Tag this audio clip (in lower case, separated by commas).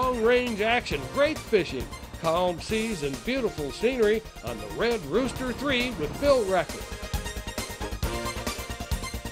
music, speech